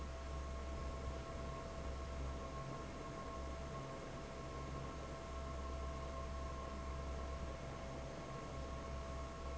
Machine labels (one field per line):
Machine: fan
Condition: normal